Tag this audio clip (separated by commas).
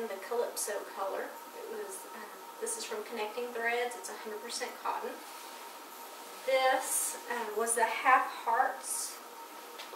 Speech